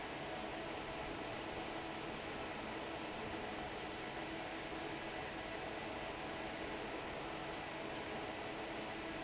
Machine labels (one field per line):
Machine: fan